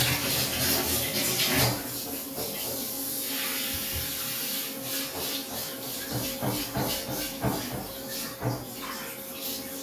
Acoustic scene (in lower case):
restroom